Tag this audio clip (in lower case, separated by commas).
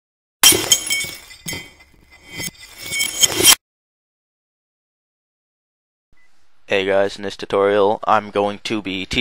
breaking, speech